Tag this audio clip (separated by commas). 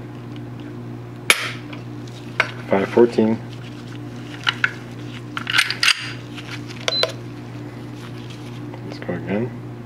inside a small room, Speech